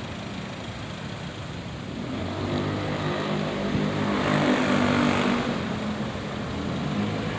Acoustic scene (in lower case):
street